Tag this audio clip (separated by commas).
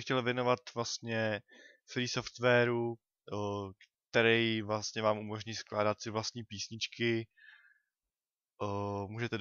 Speech